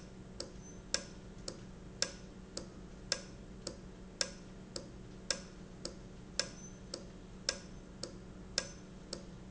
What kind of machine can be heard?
valve